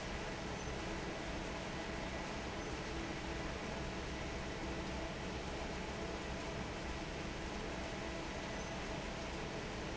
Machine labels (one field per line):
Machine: fan